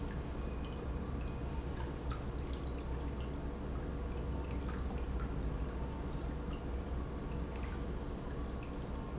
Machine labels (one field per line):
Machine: pump